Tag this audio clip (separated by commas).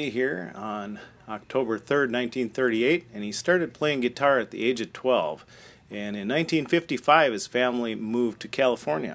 Speech